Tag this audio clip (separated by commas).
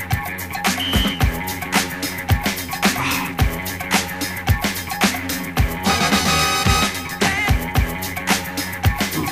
Music